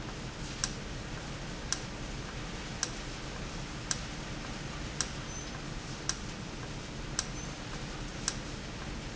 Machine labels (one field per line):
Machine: valve